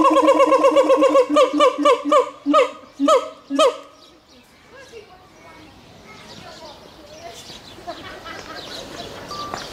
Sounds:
gibbon howling

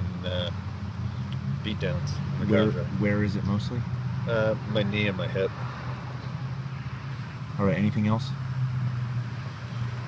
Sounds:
speech

